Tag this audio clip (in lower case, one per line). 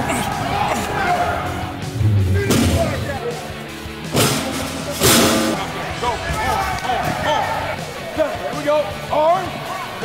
music
cheering
crowd
speech